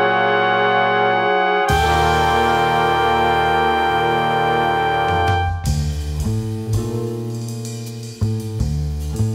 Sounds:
Music

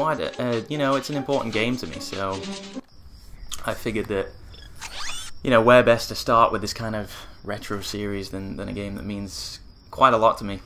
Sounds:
Speech

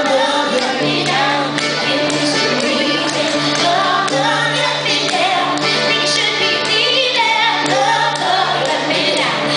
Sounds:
Music

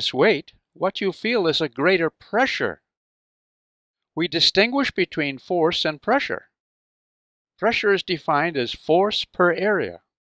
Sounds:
Speech

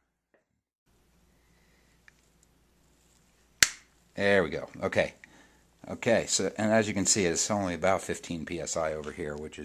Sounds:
Speech

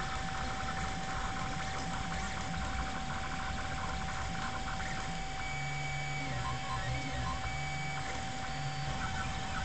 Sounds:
Printer

